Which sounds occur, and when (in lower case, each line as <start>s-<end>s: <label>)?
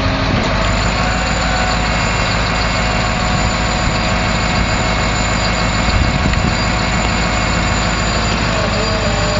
0.0s-9.3s: truck
0.0s-9.3s: wind
0.5s-0.6s: tick
5.9s-6.6s: wind noise (microphone)
6.2s-6.4s: tick
8.4s-9.3s: brief tone